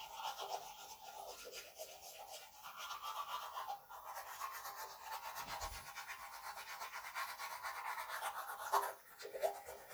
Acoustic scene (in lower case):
restroom